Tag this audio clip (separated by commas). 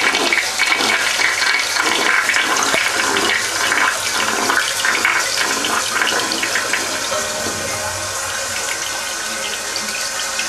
Toilet flush